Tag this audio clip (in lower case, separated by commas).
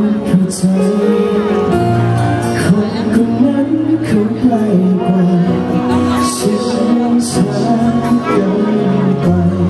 speech, music